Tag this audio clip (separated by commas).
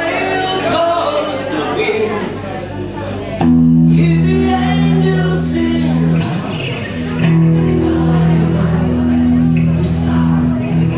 Music, Speech